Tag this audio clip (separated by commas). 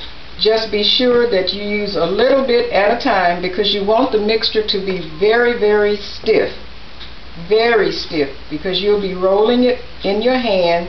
Speech